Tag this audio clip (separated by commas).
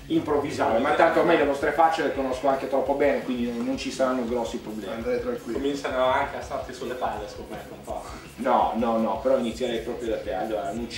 Speech, Music